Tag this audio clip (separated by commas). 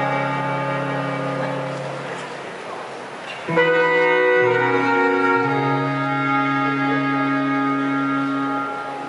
Music, Speech